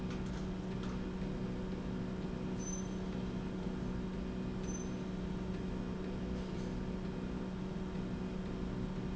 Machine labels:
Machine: slide rail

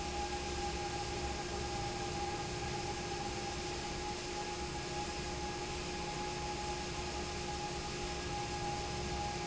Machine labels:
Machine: fan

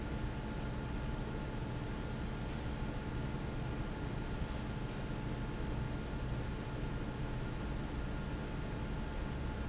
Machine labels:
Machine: fan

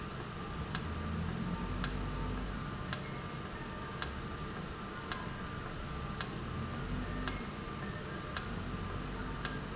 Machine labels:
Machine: valve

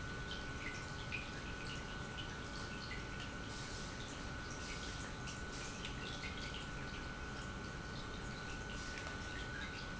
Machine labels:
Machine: pump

